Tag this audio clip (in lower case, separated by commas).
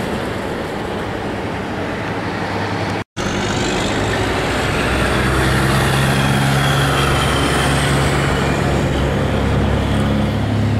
heavy engine (low frequency), truck, vehicle, outside, urban or man-made